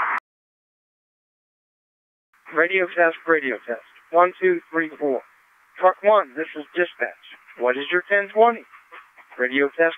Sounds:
speech

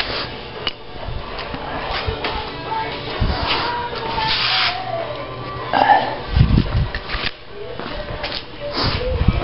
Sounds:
music

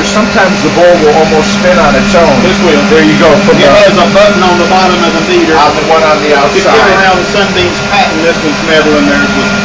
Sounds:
speech
blender
inside a small room

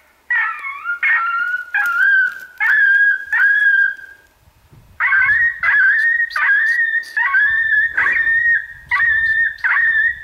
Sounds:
coyote howling

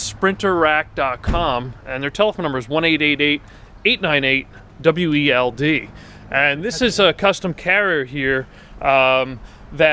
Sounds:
speech

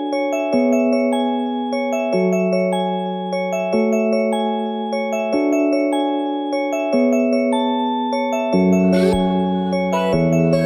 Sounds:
lullaby
glockenspiel

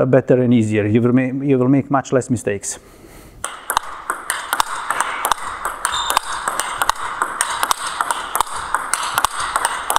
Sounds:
playing table tennis

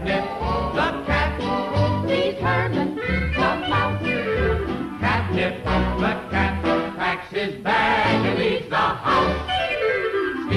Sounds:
music

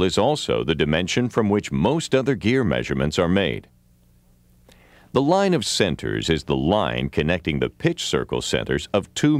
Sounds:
speech

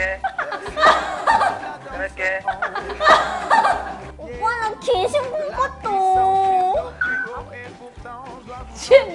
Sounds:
speech
music

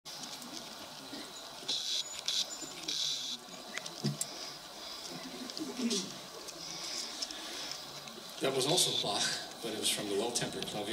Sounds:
speech

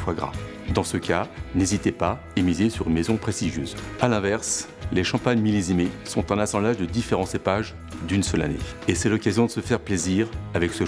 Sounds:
music
speech

